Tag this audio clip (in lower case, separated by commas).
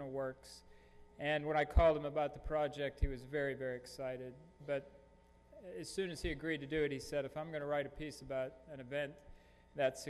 speech